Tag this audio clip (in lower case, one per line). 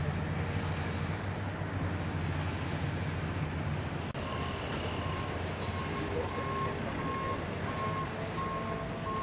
speech